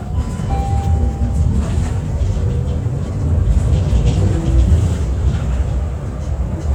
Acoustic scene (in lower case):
bus